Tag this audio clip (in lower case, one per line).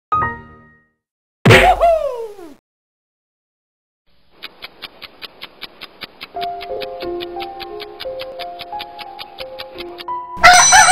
music